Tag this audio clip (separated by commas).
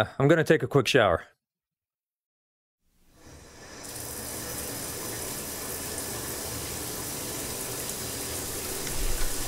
Speech